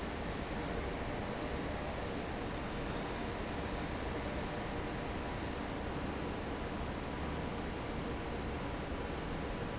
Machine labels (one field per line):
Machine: fan